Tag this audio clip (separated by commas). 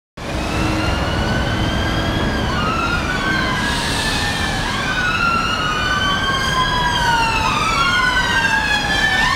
Police car (siren), Siren, Emergency vehicle